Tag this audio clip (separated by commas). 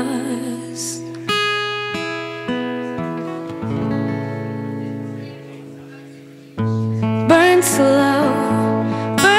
Music